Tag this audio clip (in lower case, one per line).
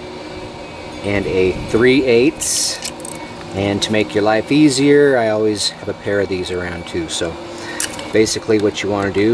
vacuum cleaner
speech